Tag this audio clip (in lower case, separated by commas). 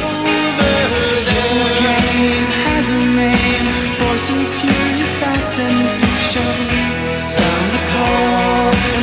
grunge, music